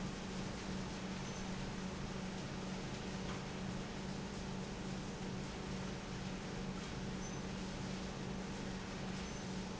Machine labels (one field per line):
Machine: pump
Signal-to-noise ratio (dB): 0 dB